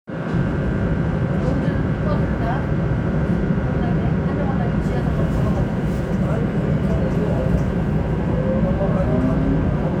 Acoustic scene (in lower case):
subway train